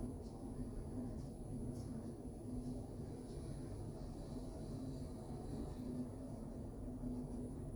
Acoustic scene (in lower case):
elevator